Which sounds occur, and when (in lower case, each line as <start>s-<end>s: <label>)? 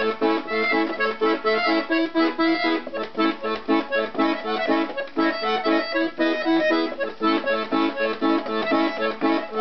0.0s-9.6s: music